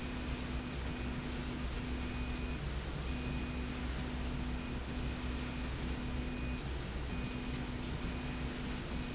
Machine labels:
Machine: slide rail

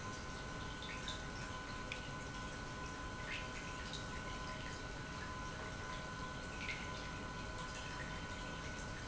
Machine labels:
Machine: pump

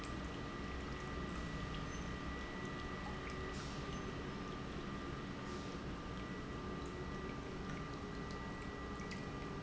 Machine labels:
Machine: pump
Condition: normal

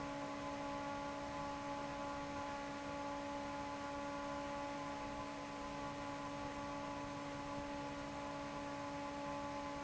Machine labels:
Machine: fan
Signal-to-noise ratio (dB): 6 dB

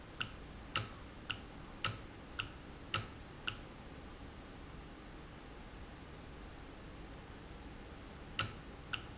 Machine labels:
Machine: valve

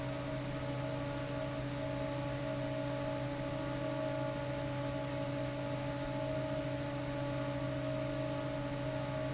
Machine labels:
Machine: fan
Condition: abnormal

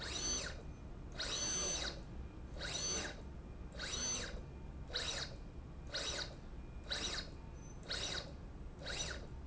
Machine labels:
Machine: slide rail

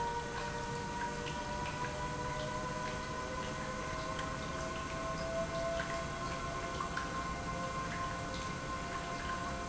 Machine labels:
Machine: pump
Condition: normal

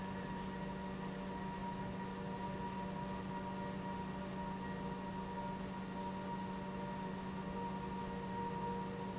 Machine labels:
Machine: pump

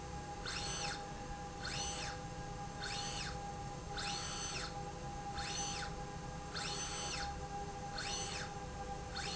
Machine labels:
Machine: slide rail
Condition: normal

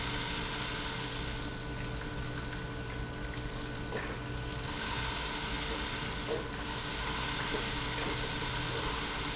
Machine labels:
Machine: pump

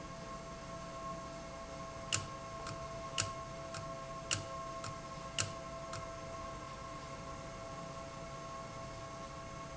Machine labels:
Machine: valve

